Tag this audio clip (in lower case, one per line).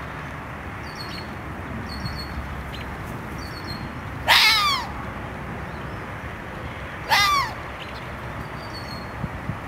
fox barking